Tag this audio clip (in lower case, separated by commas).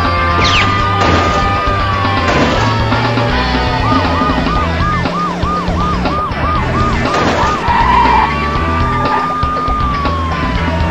police car (siren), motor vehicle (road), vehicle, music, car